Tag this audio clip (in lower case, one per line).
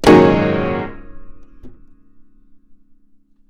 musical instrument
music
piano
keyboard (musical)